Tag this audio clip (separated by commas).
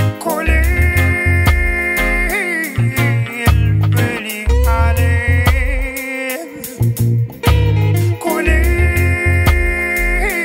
Reggae, Music